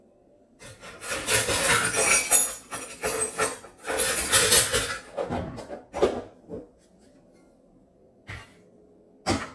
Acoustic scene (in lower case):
kitchen